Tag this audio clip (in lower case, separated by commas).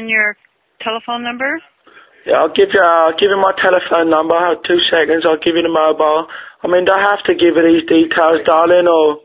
speech